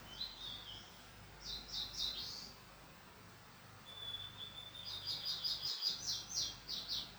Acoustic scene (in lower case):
park